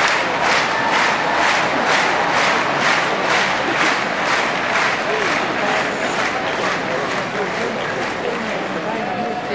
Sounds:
horse, speech, animal

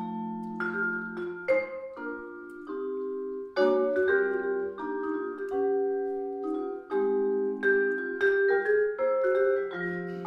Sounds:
playing vibraphone, vibraphone, music

